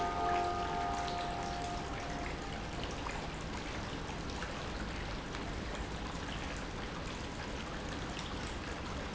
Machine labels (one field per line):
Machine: pump